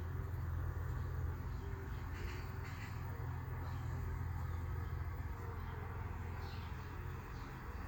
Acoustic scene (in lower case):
park